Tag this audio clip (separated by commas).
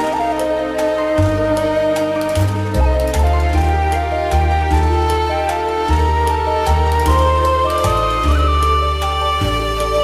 Soundtrack music, Music, Background music